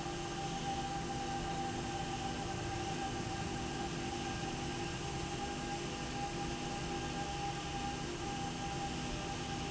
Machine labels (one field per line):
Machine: slide rail